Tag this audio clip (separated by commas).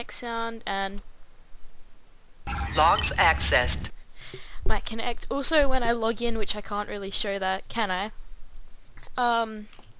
Speech